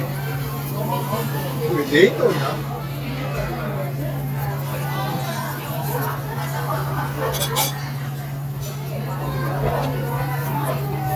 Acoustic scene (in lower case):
restaurant